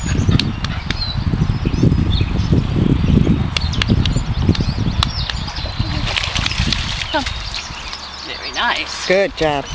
Birds sing, and two people talk while splashing occurs